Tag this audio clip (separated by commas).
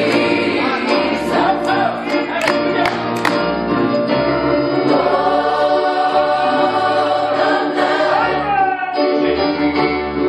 Music, Female singing, Choir